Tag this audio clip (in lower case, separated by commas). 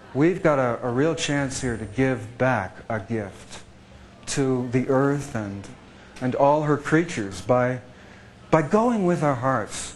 speech